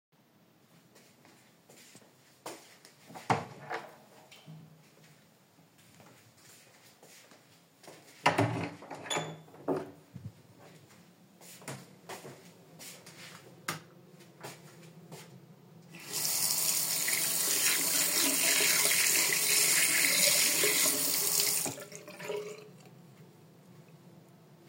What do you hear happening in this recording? I opened the hallway door, walk to the bathroom, opened the bathroom door, switched on the light, and washed my hands using the sink.